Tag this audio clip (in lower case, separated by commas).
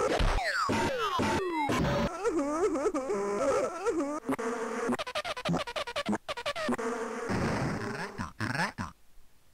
speech, inside a small room